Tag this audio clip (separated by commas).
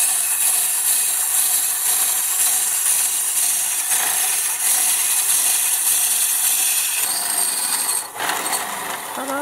Tools